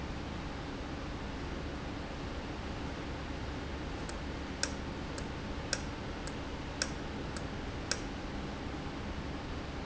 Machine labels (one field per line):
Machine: valve